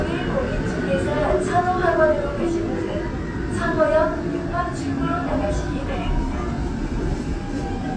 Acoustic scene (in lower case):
subway train